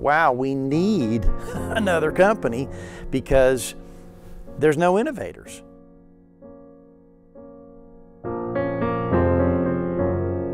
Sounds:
music, speech

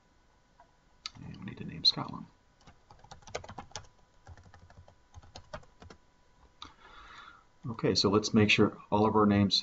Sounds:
computer keyboard, speech

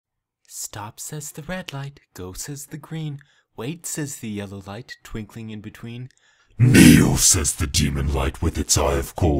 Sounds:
narration, speech

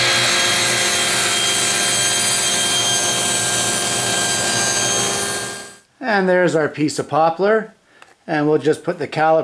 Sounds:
power tool, tools

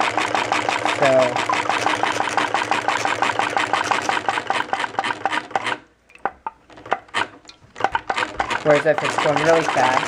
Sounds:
speech, engine

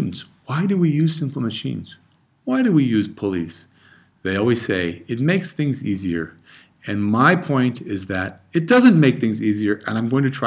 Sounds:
speech

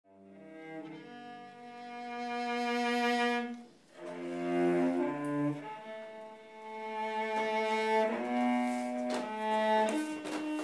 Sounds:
double bass, music, cello

